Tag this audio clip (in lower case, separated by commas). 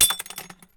shatter, crushing, glass